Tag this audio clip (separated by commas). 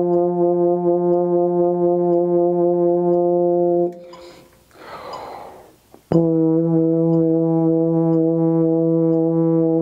playing french horn